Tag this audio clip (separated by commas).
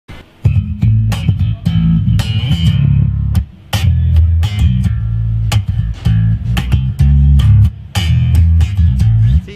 Musical instrument, playing bass guitar, Music, Bass guitar, Speech, Plucked string instrument, Guitar